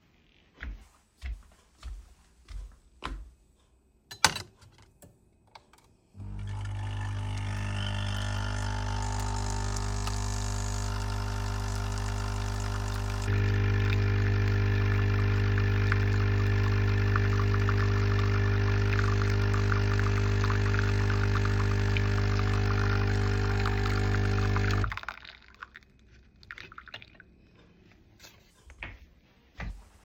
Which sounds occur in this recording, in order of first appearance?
footsteps, coffee machine